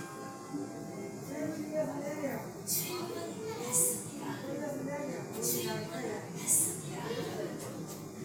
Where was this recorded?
in a subway station